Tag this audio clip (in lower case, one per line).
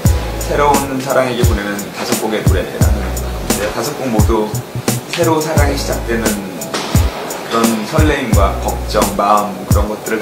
music
speech